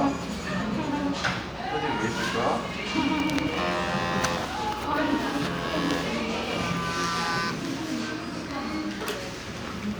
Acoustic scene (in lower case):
crowded indoor space